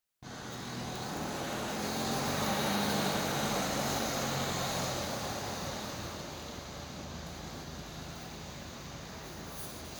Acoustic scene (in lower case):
residential area